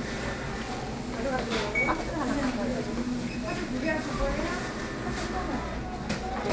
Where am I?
in a crowded indoor space